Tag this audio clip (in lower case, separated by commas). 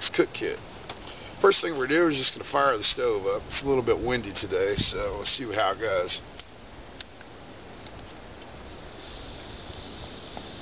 speech